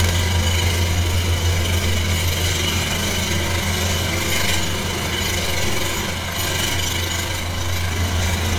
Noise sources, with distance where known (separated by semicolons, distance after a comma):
jackhammer, near